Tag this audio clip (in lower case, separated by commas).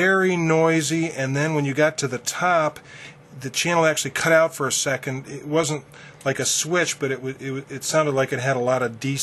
speech